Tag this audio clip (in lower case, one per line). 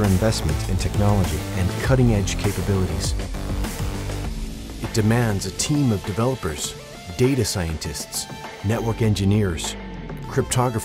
speech
music